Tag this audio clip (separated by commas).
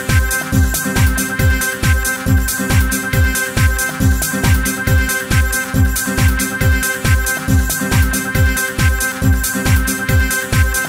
Music